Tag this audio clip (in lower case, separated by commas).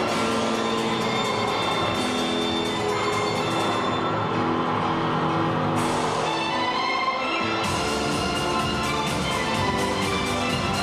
music